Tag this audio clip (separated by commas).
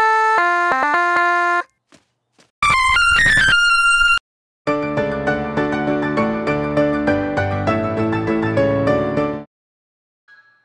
Music